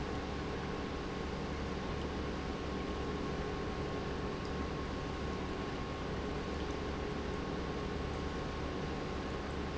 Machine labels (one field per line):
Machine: pump